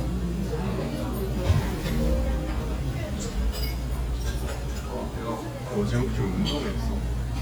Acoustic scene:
restaurant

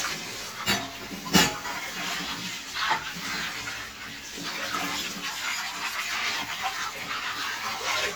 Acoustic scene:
kitchen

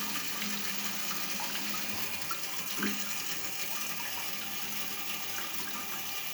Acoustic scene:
restroom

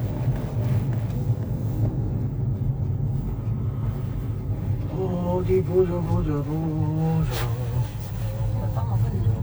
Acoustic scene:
car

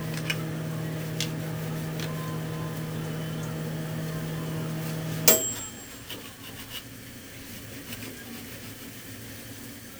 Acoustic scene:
kitchen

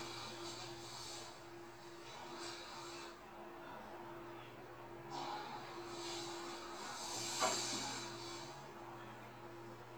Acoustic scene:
elevator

